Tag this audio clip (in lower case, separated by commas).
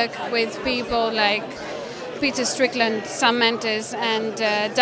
speech